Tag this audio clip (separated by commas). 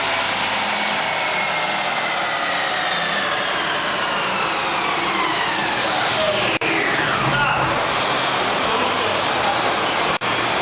Accelerating, Vehicle, Medium engine (mid frequency), Engine, Car, Speech